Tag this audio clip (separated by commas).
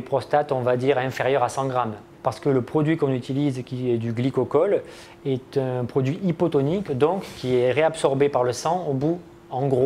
Speech